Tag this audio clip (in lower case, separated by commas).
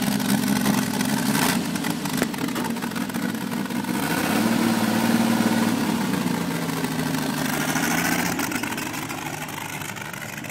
vehicle, truck